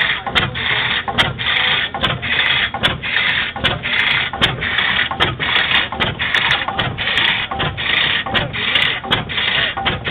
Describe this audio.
Engine being used